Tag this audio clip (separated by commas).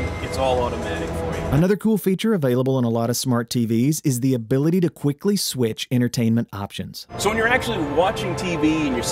Speech, Music